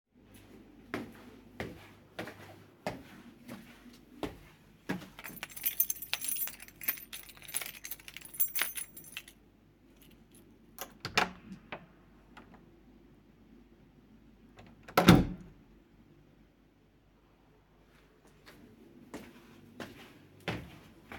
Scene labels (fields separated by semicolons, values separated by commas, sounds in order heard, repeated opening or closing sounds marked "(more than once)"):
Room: bedroom; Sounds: footsteps, keys, door (more than once)